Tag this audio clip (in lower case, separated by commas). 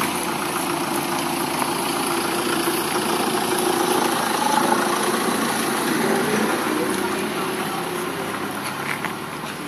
speech, vehicle